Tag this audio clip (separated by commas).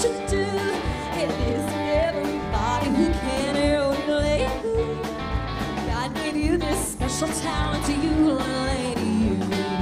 Yodeling, Music